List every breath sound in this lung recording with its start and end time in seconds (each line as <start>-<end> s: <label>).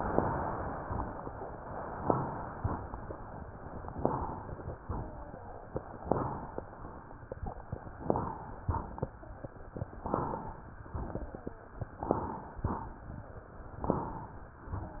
3.97-4.80 s: inhalation
4.84-5.43 s: exhalation
6.05-6.66 s: inhalation
6.66-7.25 s: exhalation
8.04-8.65 s: inhalation
8.67-9.26 s: exhalation
10.09-10.70 s: inhalation
10.93-11.52 s: exhalation
12.07-12.68 s: inhalation
12.66-13.24 s: exhalation
13.83-14.54 s: inhalation